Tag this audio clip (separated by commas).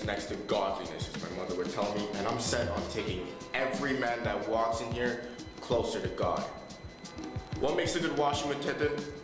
Speech, Music